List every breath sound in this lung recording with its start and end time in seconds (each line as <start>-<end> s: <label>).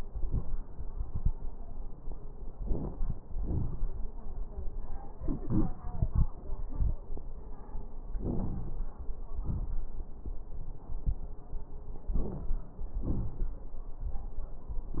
2.57-3.20 s: inhalation
2.57-3.20 s: crackles
3.29-4.05 s: exhalation
3.29-4.05 s: crackles
8.19-8.95 s: inhalation
8.19-8.95 s: crackles
9.40-9.94 s: exhalation
9.40-9.94 s: crackles
12.11-12.59 s: inhalation
12.11-12.59 s: crackles
13.07-13.56 s: exhalation
13.07-13.56 s: crackles